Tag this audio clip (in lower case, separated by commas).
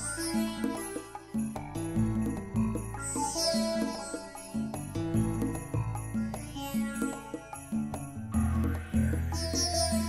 music